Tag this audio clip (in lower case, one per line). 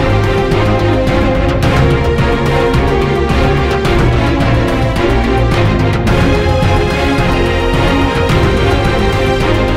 music